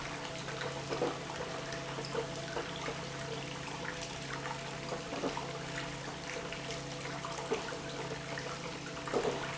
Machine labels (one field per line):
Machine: pump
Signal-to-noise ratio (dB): 0 dB